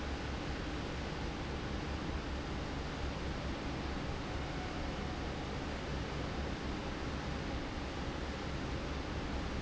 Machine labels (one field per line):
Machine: fan